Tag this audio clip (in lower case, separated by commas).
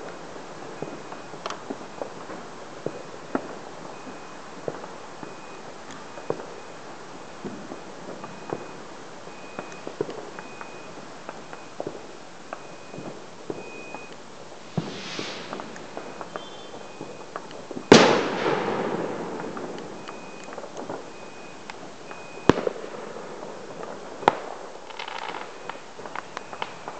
explosion, fireworks